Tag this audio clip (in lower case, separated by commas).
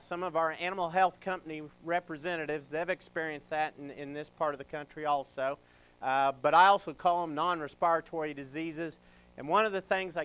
speech